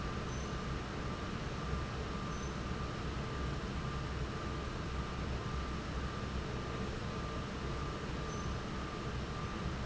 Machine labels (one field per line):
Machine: fan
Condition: normal